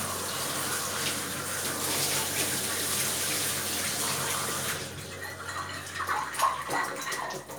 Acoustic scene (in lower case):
kitchen